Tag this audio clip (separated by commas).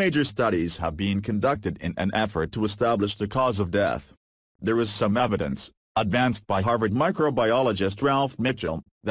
Speech synthesizer